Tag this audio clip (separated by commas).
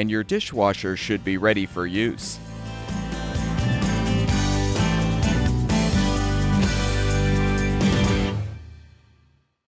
Music, Speech